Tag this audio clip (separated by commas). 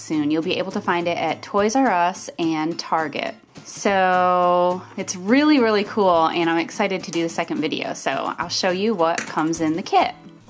Music, Speech